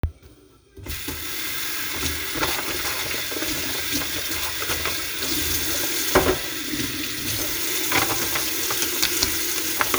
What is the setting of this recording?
kitchen